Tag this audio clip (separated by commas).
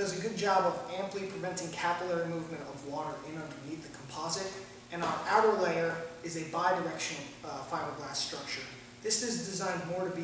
Speech